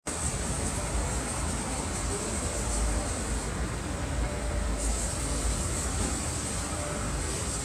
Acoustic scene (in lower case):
street